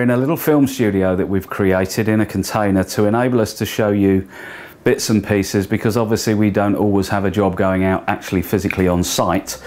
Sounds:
Speech

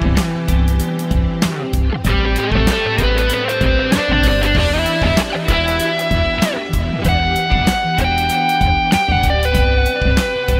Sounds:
Plucked string instrument, Strum, Music, Bass guitar, Guitar, Musical instrument

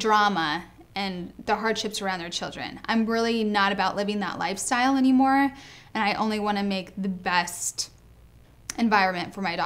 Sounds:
Speech, Female speech

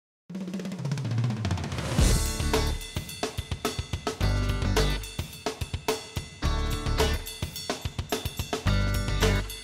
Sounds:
Music

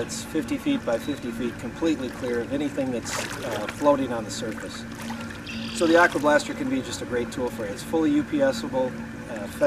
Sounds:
Speech

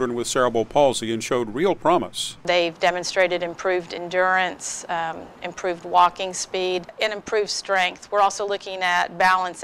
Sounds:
Speech

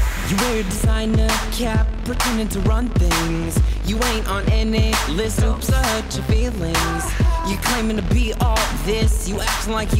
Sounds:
Dance music, Theme music, Music, Background music

